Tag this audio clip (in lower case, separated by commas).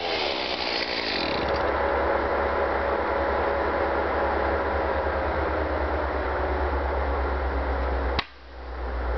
chainsaw